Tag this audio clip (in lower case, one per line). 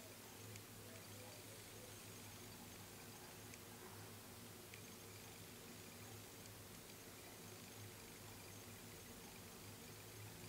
outside, urban or man-made
bird